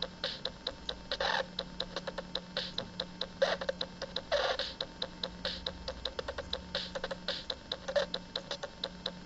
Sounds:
Music, Drum machine

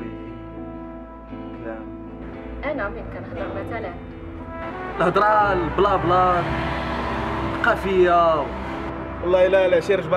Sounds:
Speech, Music

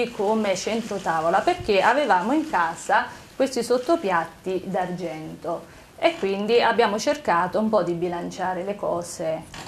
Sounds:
Speech, woman speaking

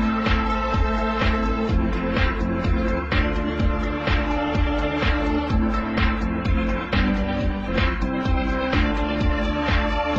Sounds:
Music

